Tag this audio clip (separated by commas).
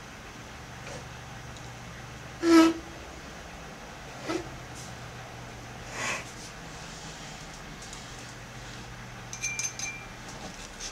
Writing